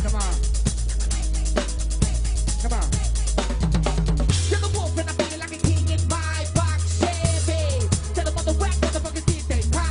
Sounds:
music, disco

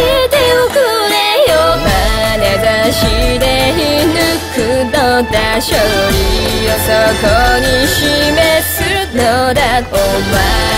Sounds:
music

